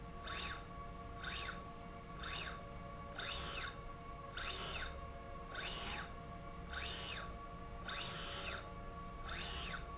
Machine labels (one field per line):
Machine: slide rail